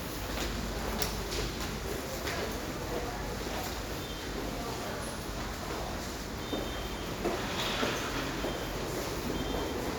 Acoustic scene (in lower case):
subway station